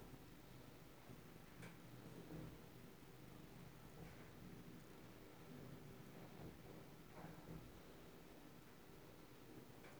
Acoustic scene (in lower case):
elevator